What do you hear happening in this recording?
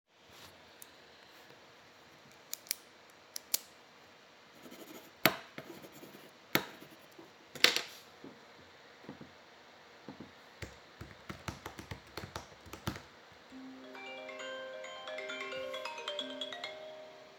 I was taking notes with a pen and as I was using the keyboard the phone started ringing.